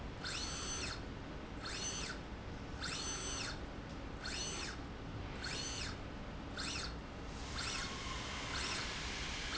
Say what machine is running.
slide rail